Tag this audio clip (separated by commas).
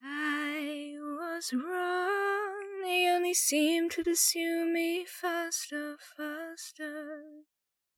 Female singing, Human voice, Singing